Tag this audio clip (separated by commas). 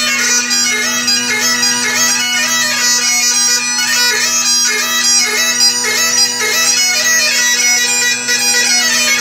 playing bagpipes, Music, Bagpipes